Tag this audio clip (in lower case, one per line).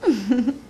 chortle
human voice
laughter